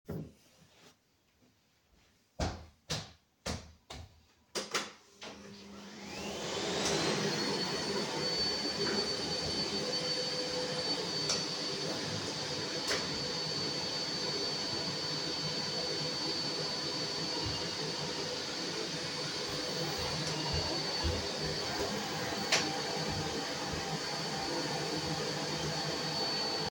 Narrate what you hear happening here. I plug my vaccum cleaner in and vacuum a bit. While vacuuming my phone is ringing twice (silent ringing compared to overarching vacuum sound).